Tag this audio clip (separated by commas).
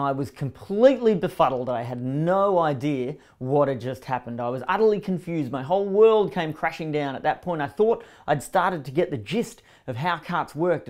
Speech